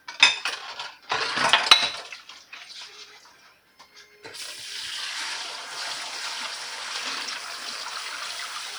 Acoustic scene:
kitchen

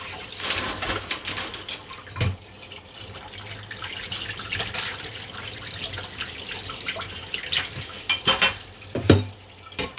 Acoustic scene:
kitchen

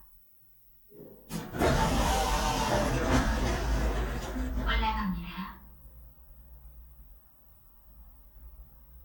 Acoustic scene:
elevator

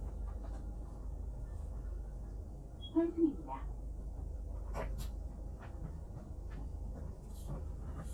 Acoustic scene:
bus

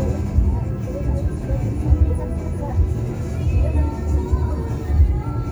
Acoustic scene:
car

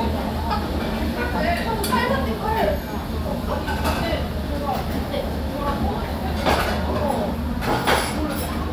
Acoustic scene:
restaurant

